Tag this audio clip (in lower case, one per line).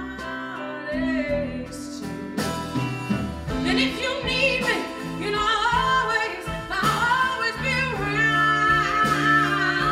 singing